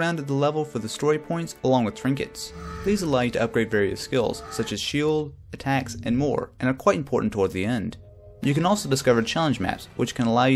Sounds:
Speech, Music

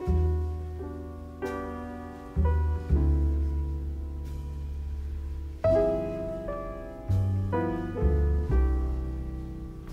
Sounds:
Musical instrument, Music

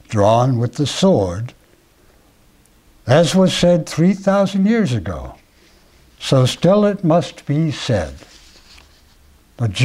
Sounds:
Speech, inside a small room

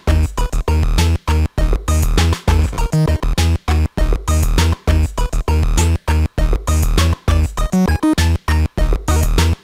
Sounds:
Music, Drum machine

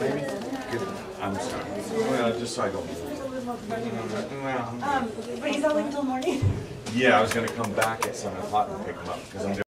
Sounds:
Speech

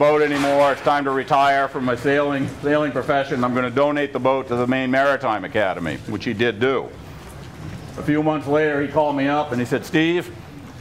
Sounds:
Speech

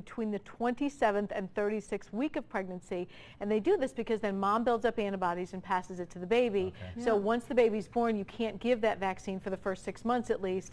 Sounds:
Speech

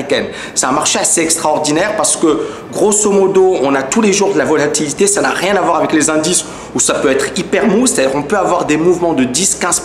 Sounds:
Speech

